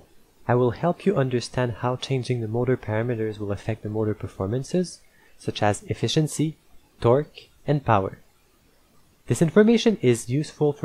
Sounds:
Speech

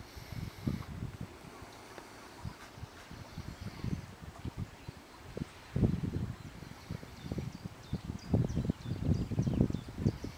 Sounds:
Wind, Wind noise (microphone)

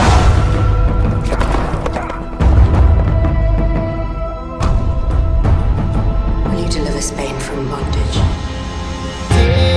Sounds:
Soundtrack music, Speech, Music

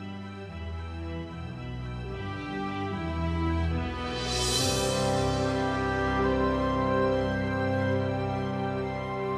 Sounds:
Music

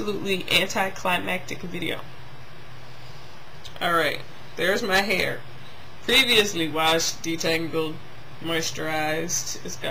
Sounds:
Speech

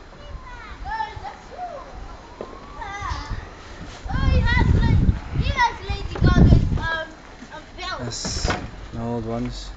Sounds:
Speech

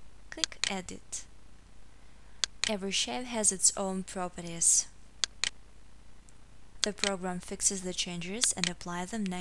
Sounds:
Speech

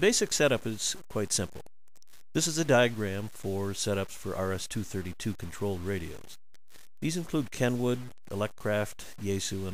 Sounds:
Speech

